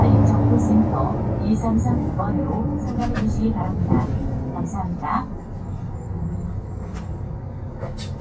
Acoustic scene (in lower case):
bus